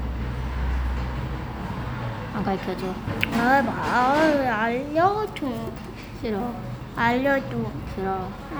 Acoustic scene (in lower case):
cafe